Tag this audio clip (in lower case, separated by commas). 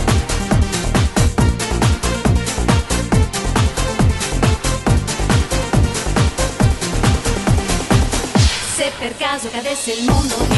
electronic dance music, electronic music, music